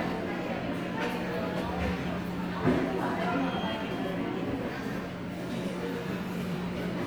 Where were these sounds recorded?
in a subway station